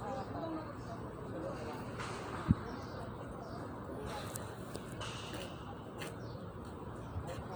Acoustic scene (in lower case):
park